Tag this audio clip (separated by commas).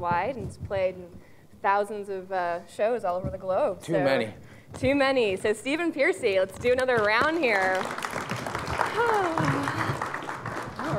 Speech